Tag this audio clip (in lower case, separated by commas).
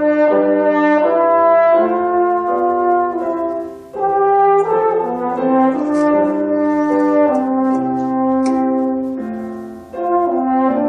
music, playing french horn, french horn